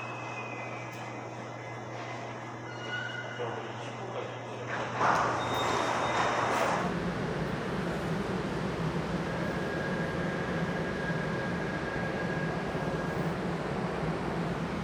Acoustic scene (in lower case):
subway station